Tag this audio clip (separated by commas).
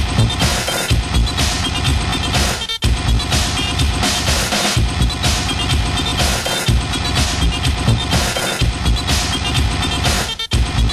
Music, Electronic dance music, Electronic music